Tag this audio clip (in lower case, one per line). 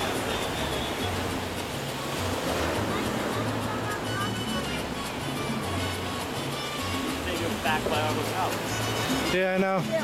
speech
music